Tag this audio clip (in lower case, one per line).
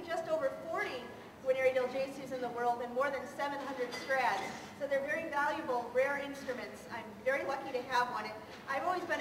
speech